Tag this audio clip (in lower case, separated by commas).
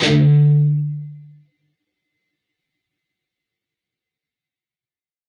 guitar, plucked string instrument, music, musical instrument